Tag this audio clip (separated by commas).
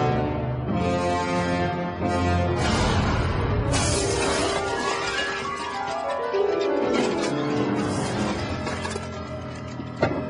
Music